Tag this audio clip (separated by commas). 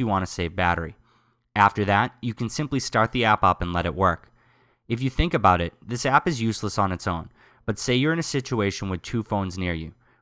Speech